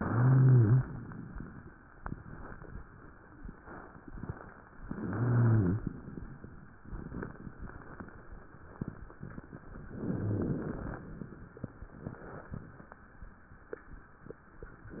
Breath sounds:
0.00-0.89 s: inhalation
0.00-0.89 s: wheeze
4.89-5.90 s: inhalation
4.89-5.90 s: wheeze
10.05-10.61 s: rhonchi
10.05-11.06 s: inhalation

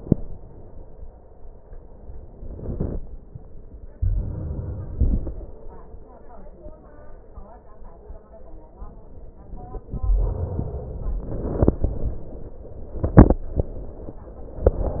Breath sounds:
3.92-5.42 s: inhalation

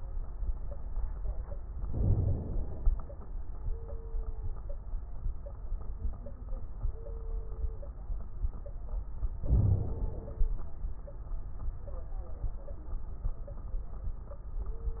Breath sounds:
1.84-3.00 s: inhalation
1.84-3.00 s: crackles
9.41-10.57 s: inhalation
9.41-10.57 s: crackles

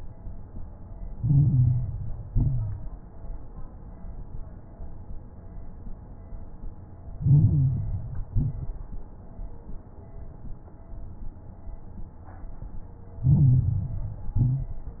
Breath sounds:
1.08-2.22 s: inhalation
1.08-2.22 s: crackles
2.24-2.96 s: exhalation
2.24-2.96 s: crackles
7.12-8.26 s: inhalation
7.12-8.26 s: crackles
8.30-9.02 s: exhalation
8.30-9.02 s: crackles
13.19-14.33 s: inhalation
13.19-14.33 s: crackles
14.37-15.00 s: exhalation
14.37-15.00 s: crackles

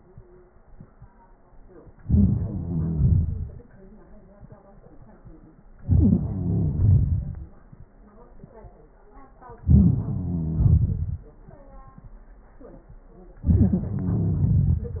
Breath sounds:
2.02-2.53 s: inhalation
2.41-3.03 s: wheeze
2.60-3.55 s: exhalation
5.80-6.37 s: inhalation
6.20-6.83 s: wheeze
6.77-7.51 s: exhalation
9.64-10.22 s: inhalation
10.03-10.80 s: wheeze
10.53-11.26 s: exhalation
13.43-13.94 s: inhalation
13.90-14.82 s: wheeze
14.39-15.00 s: exhalation

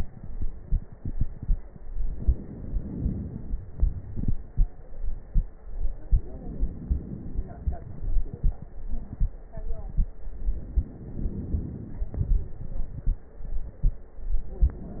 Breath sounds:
0.00-1.77 s: exhalation
0.00-1.77 s: crackles
1.78-3.73 s: inhalation
1.78-3.73 s: crackles
3.74-6.02 s: exhalation
3.75-5.99 s: crackles
6.02-8.25 s: inhalation
6.02-8.25 s: crackles
8.30-10.32 s: exhalation
8.30-10.32 s: crackles
10.33-12.10 s: crackles
10.34-12.10 s: inhalation
12.13-14.12 s: exhalation
12.13-14.12 s: crackles
14.18-15.00 s: inhalation
14.18-15.00 s: crackles

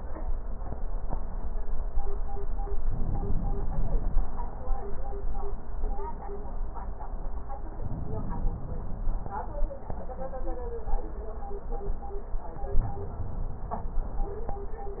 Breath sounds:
2.85-4.25 s: inhalation
7.77-9.17 s: inhalation
12.69-14.21 s: inhalation

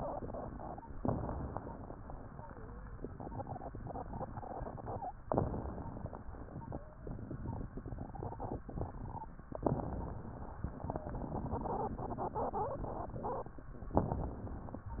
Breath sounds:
0.95-1.96 s: inhalation
0.95-1.96 s: crackles
2.32-2.96 s: wheeze
5.27-6.28 s: inhalation
5.27-6.28 s: crackles
6.70-7.35 s: wheeze
9.59-10.60 s: inhalation
9.59-10.60 s: crackles
10.74-11.22 s: wheeze
13.93-14.94 s: inhalation
13.93-14.94 s: crackles

